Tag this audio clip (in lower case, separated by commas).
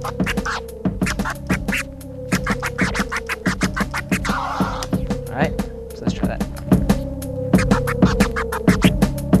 music, hip hop music, scratching (performance technique)